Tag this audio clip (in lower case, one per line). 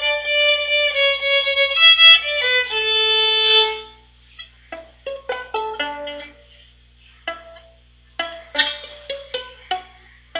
musical instrument
music
violin